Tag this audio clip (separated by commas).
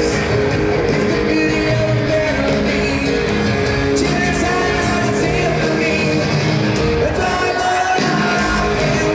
Rock and roll, Heavy metal